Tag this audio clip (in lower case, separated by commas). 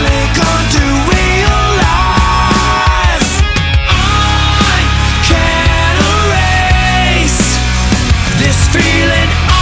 music